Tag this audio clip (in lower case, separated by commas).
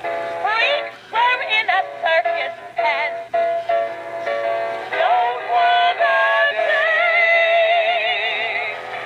female singing, music